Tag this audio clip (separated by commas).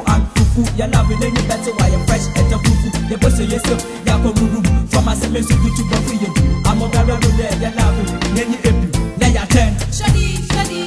Music of Africa, Music